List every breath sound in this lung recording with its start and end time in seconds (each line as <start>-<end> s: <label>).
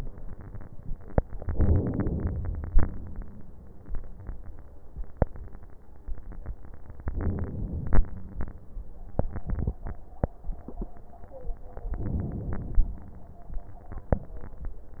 1.48-2.71 s: inhalation
7.09-8.05 s: inhalation
11.95-12.91 s: inhalation